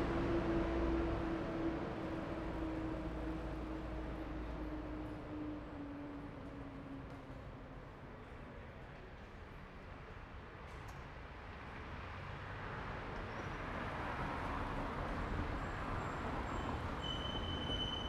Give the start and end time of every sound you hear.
0.0s-0.2s: car
0.0s-0.2s: car wheels rolling
0.0s-8.2s: bus
0.0s-8.2s: bus engine accelerating
8.1s-9.3s: people talking
10.6s-18.1s: car
10.6s-18.1s: car wheels rolling

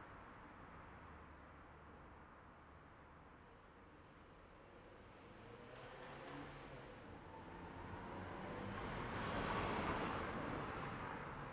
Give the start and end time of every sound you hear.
5.8s-11.5s: car
5.8s-11.5s: car engine accelerating
9.6s-11.5s: car wheels rolling

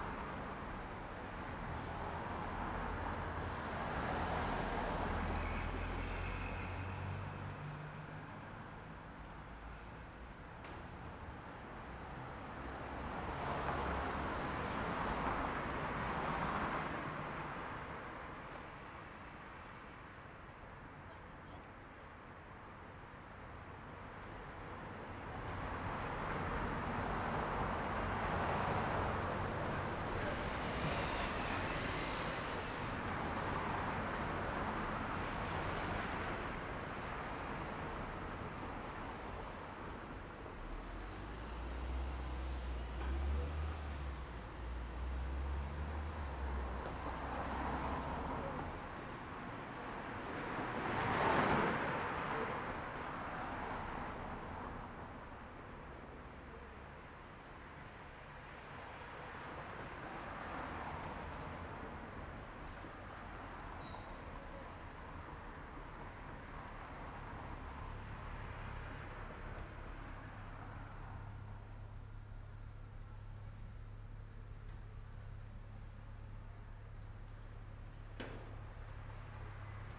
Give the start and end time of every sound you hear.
0.0s-42.6s: car
0.0s-42.6s: car wheels rolling
3.1s-8.1s: car engine accelerating
13.8s-15.3s: car engine accelerating
20.9s-22.2s: people talking
28.0s-29.7s: car engine accelerating
29.6s-31.6s: bus engine accelerating
29.6s-33.7s: bus wheels rolling
29.6s-46.8s: bus
33.6s-40.7s: bus engine idling
40.6s-46.8s: bus engine accelerating
46.9s-58.0s: car wheels rolling
46.9s-80.0s: car
47.7s-49.6s: people talking
59.4s-63.0s: car wheels rolling
63.9s-65.8s: car wheels rolling
65.8s-80.0s: car engine idling
66.5s-71.0s: car wheels rolling

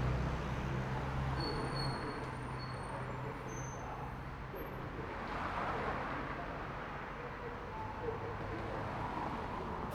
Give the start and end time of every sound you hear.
0.0s-1.6s: car engine accelerating
0.0s-2.8s: car
0.0s-2.8s: car wheels rolling
1.2s-4.1s: bus brakes
1.2s-9.9s: bus
2.0s-9.9s: unclassified sound
4.3s-4.8s: bus brakes
5.3s-9.9s: car
5.3s-9.9s: car wheels rolling

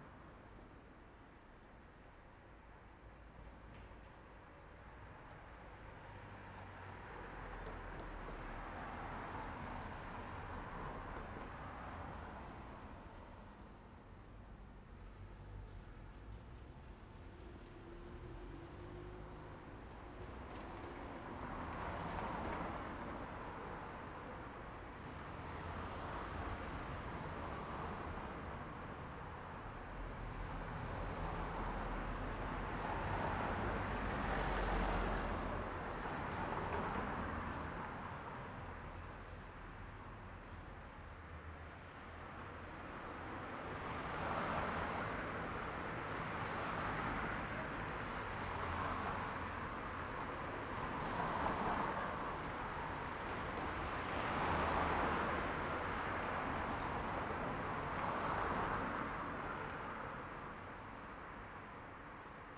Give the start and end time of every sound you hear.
3.7s-15.0s: car
3.7s-15.0s: car wheels rolling
8.9s-10.6s: car engine accelerating
15.1s-21.2s: car engine accelerating
15.1s-40.3s: car
21.1s-40.3s: car wheels rolling
25.2s-26.4s: car engine accelerating
30.5s-31.5s: car engine accelerating
33.7s-35.5s: car engine accelerating
42.2s-62.6s: car
42.2s-62.6s: car wheels rolling
46.9s-48.3s: people talking

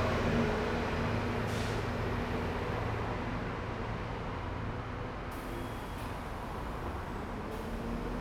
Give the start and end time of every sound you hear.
0.0s-3.1s: bus engine accelerating
0.0s-8.2s: bus
1.4s-2.0s: bus wheels rolling
2.5s-8.2s: car
2.5s-8.2s: car wheels rolling
5.3s-7.8s: bus wheels rolling
7.3s-8.2s: bus engine accelerating

